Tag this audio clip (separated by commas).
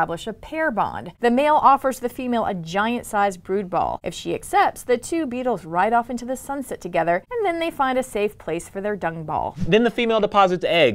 Speech